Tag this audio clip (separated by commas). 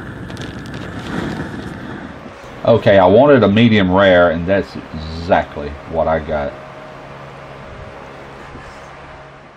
Speech, outside, urban or man-made